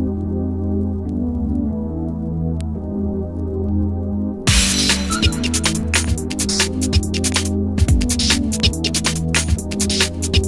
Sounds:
music
sound effect

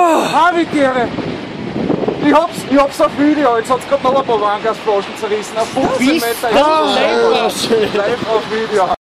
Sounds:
speech

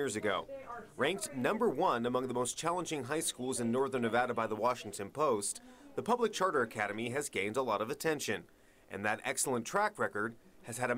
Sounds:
speech

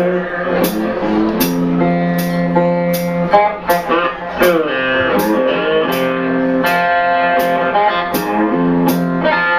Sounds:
strum
plucked string instrument
music
guitar
musical instrument

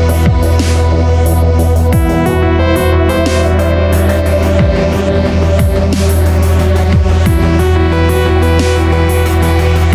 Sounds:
electronica
electronic music
music
ambient music

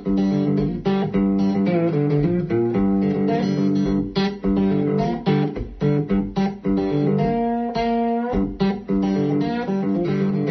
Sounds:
musical instrument
guitar
music
plucked string instrument

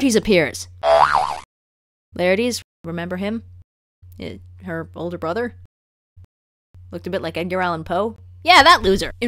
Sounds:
speech

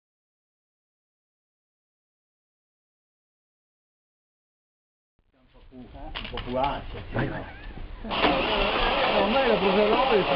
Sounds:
speech
engine

